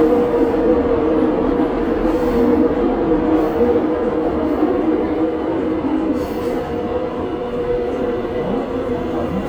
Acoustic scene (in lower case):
subway train